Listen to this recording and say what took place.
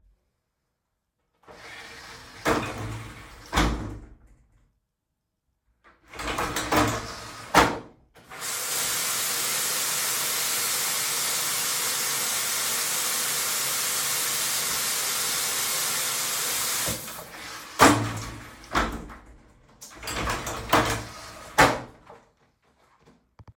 I opened the shower door, turned the water on and off, and closed the door.